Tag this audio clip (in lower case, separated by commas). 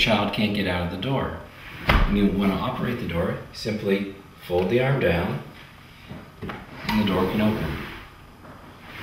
speech, sliding door, door